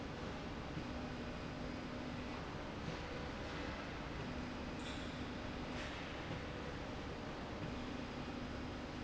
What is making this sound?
slide rail